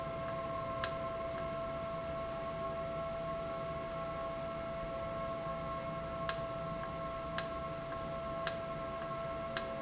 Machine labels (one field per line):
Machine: valve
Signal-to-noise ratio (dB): -6 dB